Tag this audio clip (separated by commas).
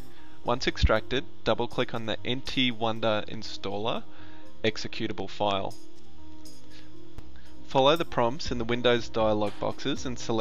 Music, Speech